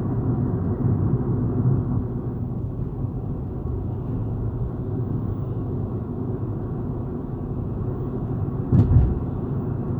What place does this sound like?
car